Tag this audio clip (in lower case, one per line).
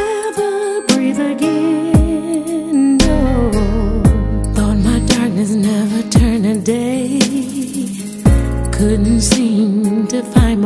music